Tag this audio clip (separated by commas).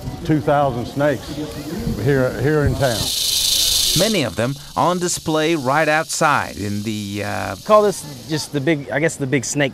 Snake, Hiss